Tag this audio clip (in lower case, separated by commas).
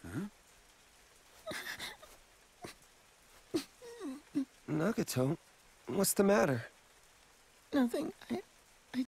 speech